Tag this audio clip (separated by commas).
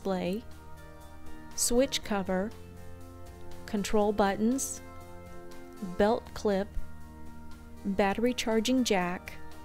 Speech, Music